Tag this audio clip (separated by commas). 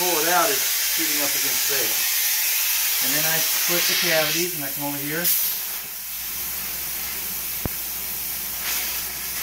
Speech, Spray